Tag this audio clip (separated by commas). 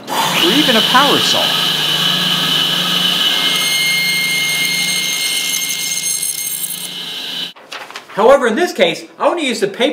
Speech